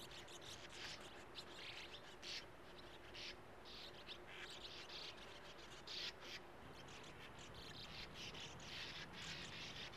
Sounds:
barn swallow calling

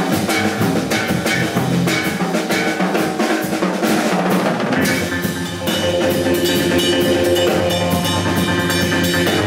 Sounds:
Music, Steelpan

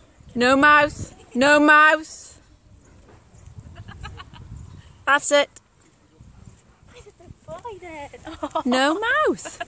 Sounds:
Speech

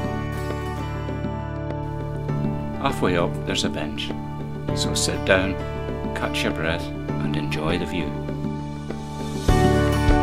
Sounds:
Speech, Music

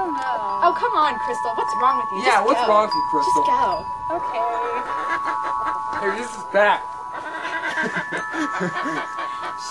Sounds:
Music, Speech

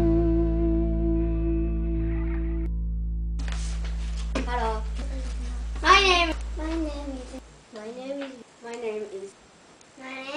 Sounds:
Music, Speech

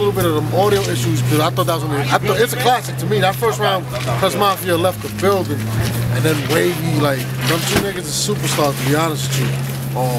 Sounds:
Speech

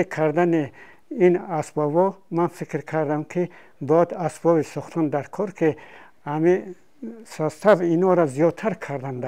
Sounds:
Speech

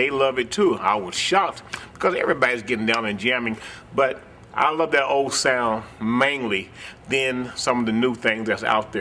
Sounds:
Speech

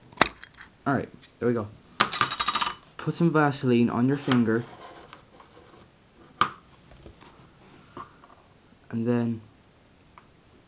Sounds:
Speech

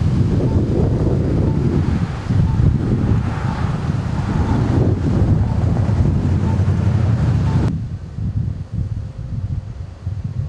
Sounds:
outside, urban or man-made, Rustling leaves, Wind noise (microphone)

